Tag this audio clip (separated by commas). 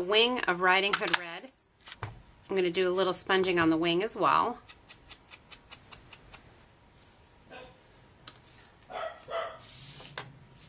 Dog, Bark